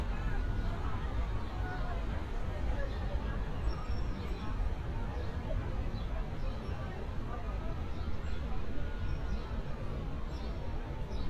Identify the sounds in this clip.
siren, person or small group talking